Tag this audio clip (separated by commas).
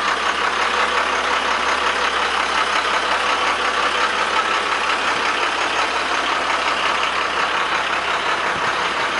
Vehicle